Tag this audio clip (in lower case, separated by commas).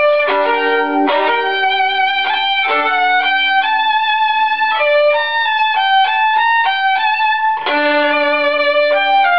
music, musical instrument, fiddle